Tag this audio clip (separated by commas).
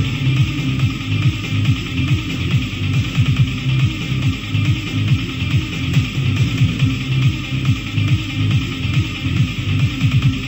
Music